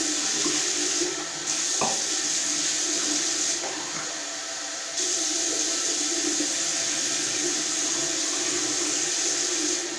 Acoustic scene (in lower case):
restroom